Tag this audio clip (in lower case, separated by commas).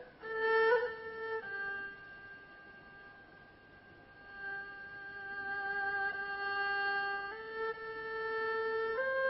playing erhu